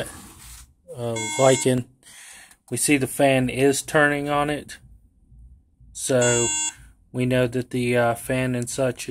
A man talks with a series of electronic beeping